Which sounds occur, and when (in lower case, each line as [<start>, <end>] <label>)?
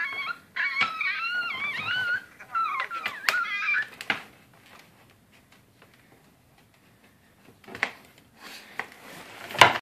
[0.00, 0.38] whimper (dog)
[0.00, 9.81] background noise
[0.54, 2.31] whimper (dog)
[0.74, 0.98] generic impact sounds
[1.58, 2.10] generic impact sounds
[2.36, 3.40] generic impact sounds
[2.40, 3.91] whimper (dog)
[3.95, 4.27] generic impact sounds
[4.61, 4.92] generic impact sounds
[5.03, 5.19] generic impact sounds
[5.28, 5.64] generic impact sounds
[5.72, 6.04] generic impact sounds
[6.20, 6.31] generic impact sounds
[6.55, 7.13] generic impact sounds
[7.35, 8.23] generic impact sounds
[8.36, 8.76] scrape
[8.76, 8.88] generic impact sounds
[8.97, 9.55] scrape
[9.61, 9.80] generic impact sounds